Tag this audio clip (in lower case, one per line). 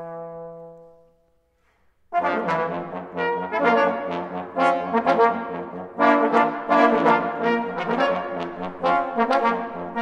music
trumpet
brass instrument